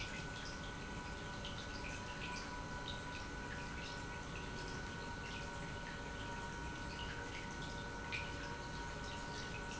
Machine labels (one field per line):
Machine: pump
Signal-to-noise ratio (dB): 6 dB